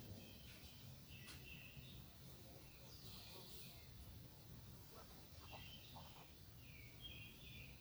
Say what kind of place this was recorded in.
park